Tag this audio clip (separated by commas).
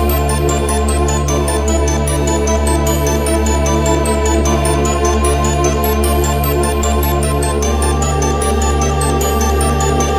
Music